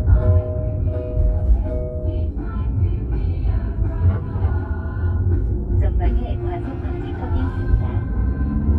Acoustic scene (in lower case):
car